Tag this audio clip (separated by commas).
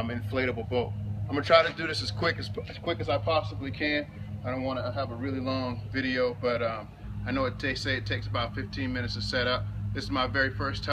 Speech